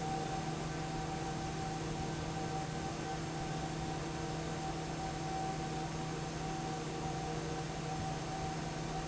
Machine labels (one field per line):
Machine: fan